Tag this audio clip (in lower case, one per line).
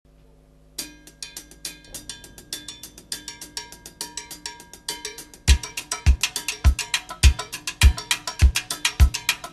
percussion